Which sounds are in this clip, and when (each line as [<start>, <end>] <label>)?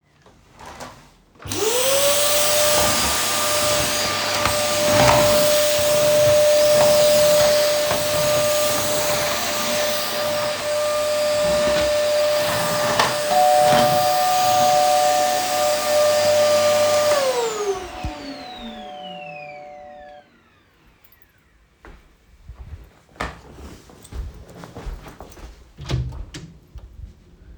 [1.40, 21.46] vacuum cleaner
[13.26, 20.25] bell ringing
[23.16, 25.64] footsteps
[25.79, 26.64] door